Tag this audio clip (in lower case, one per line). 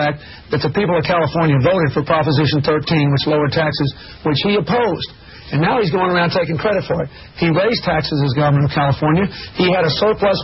speech